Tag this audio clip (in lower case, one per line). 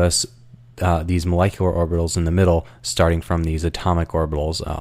speech